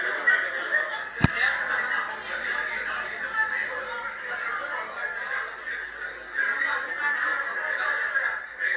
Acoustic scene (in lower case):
crowded indoor space